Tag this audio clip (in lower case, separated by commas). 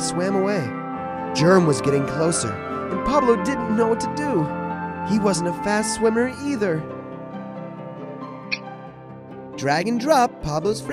music